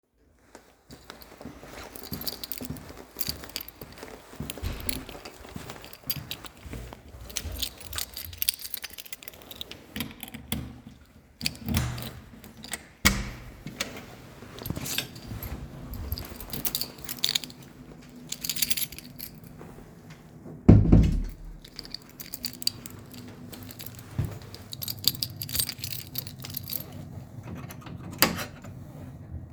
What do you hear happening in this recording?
I was walking towards my dorm room. While going through the hallway I pull out my keychain and then finally open the door to get in, then I close it and pull the key out.